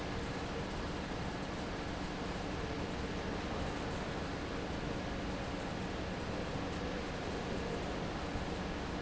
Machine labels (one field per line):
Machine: fan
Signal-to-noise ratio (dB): -6 dB